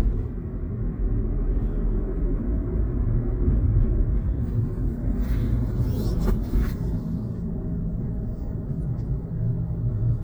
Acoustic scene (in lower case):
car